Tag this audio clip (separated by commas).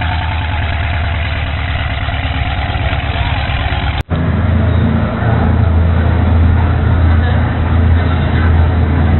Speech, Boat, speedboat, Vehicle